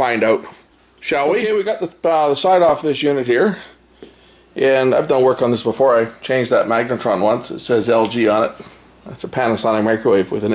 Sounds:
speech

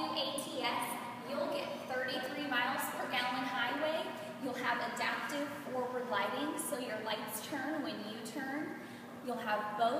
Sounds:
speech

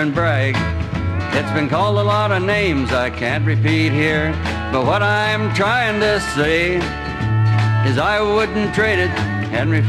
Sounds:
music

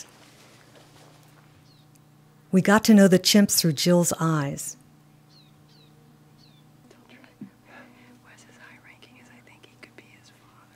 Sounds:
people whispering, speech, whispering, animal

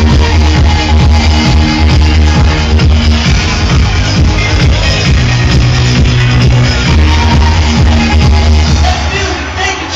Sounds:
music, speech

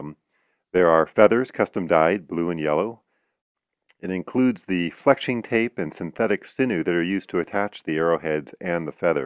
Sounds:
speech

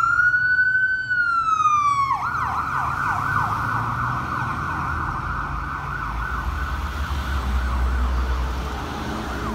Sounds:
ambulance siren

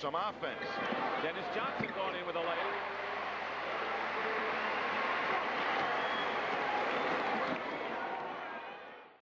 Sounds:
basketball bounce, inside a public space, speech

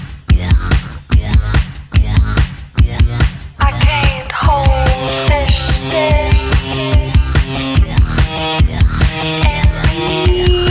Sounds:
music

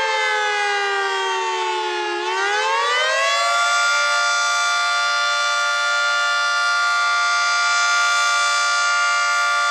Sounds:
truck horn

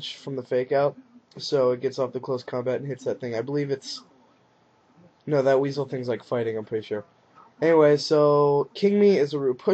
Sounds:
narration, speech

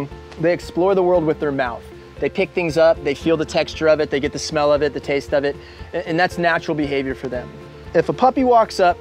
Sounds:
music, speech

